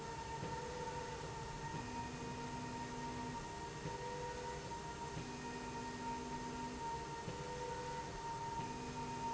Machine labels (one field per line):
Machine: slide rail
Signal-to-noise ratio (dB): 0 dB